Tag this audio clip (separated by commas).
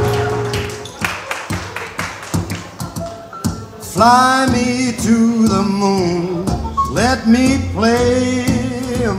Music